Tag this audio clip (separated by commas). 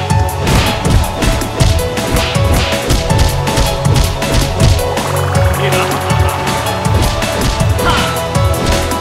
Music